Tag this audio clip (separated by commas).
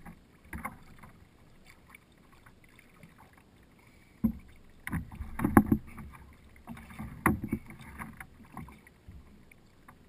Vehicle, canoe, Rowboat